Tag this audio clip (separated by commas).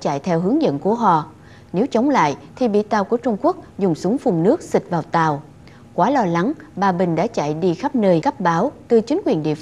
Speech